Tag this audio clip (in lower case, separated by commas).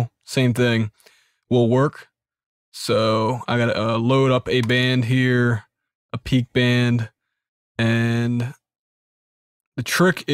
speech